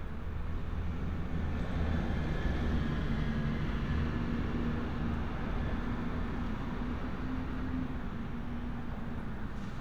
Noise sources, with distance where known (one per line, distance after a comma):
engine of unclear size, near